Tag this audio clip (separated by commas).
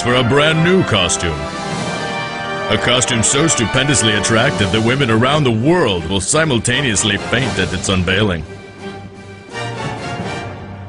Music, Speech